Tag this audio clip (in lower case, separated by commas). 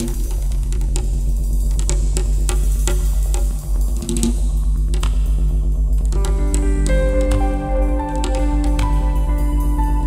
new-age music